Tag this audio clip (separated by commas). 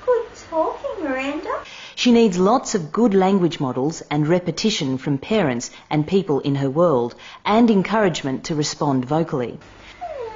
Speech